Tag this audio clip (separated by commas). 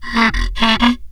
Wood